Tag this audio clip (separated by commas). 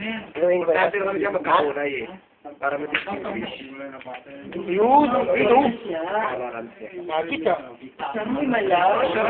Speech